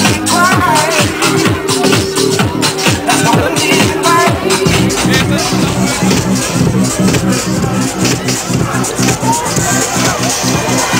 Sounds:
Speech, Music

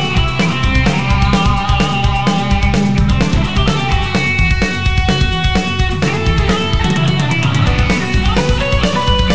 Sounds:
Electric guitar, Guitar, Musical instrument, Music, Plucked string instrument, Strum

